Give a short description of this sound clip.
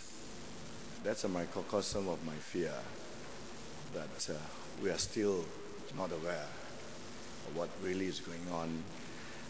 Man speaks slowly